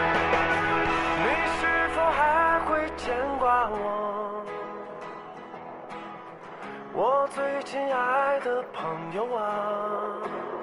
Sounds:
music

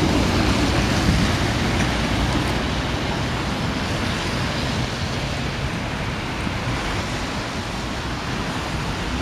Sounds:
railroad car
train
vehicle
outside, urban or man-made

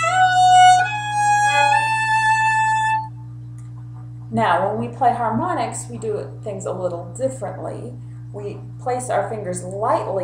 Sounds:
music
fiddle
musical instrument
speech

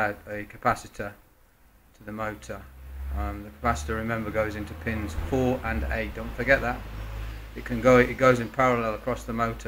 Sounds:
speech

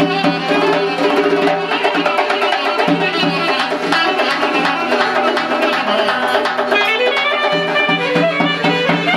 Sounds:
music
musical instrument
wind instrument
clarinet

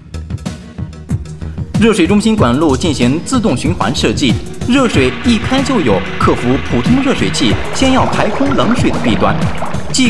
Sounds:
music
speech

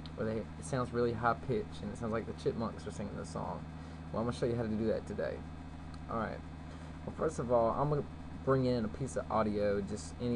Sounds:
speech

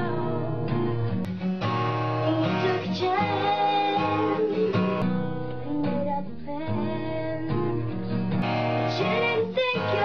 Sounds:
child singing
music

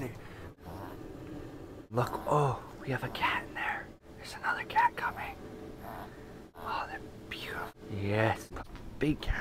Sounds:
speech

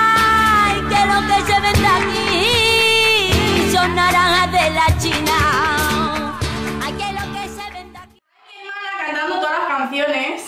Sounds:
speech
flamenco
music
music of latin america

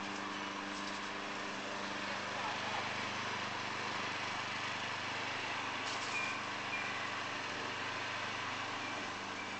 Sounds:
speech

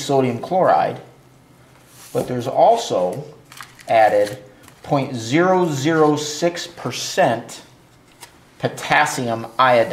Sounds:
speech

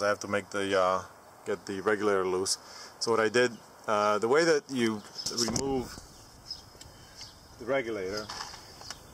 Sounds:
outside, rural or natural
speech

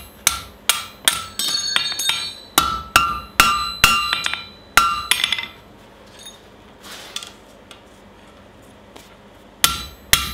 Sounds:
forging swords

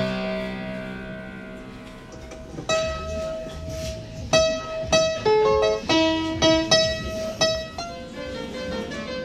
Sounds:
playing harpsichord

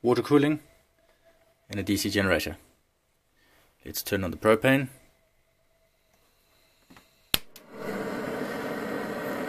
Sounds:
speech
engine

